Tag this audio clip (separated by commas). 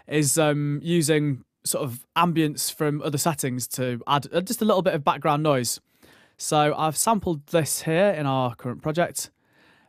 Speech